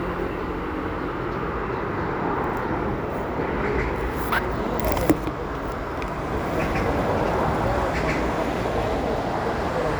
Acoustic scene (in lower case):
residential area